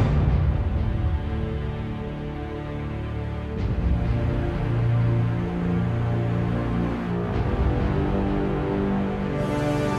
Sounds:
Music

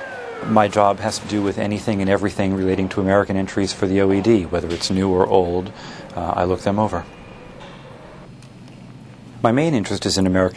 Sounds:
Speech

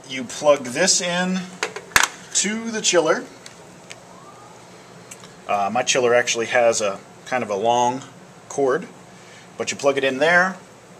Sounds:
Speech

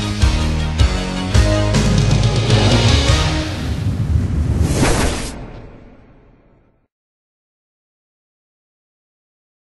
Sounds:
Music, Television

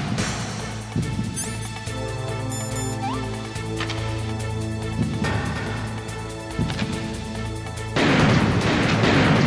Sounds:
Music

